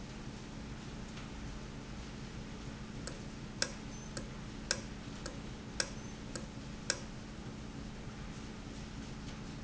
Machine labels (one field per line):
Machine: valve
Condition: normal